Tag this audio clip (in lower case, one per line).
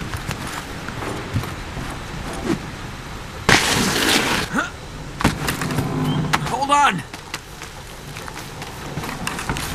outside, rural or natural
speech